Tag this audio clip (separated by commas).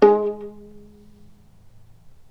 Music, Musical instrument, Bowed string instrument